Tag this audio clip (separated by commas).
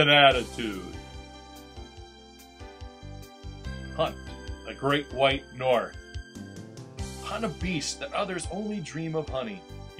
Speech, Music